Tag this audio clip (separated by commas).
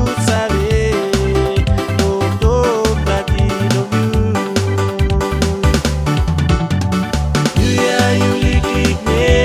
Music, Dance music, Rhythm and blues, Blues